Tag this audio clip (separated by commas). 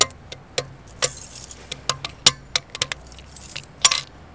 Domestic sounds, Keys jangling